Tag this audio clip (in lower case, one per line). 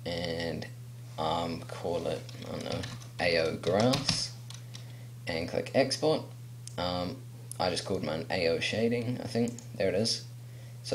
computer keyboard
speech